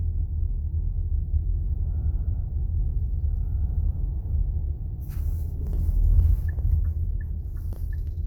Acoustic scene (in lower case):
car